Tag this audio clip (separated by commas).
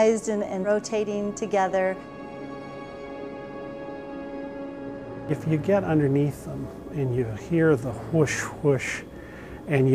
Speech, Music